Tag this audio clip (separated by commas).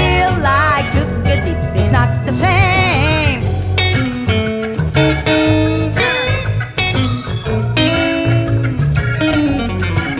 Singing